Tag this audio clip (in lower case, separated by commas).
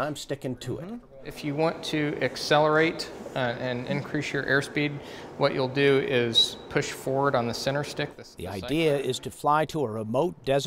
speech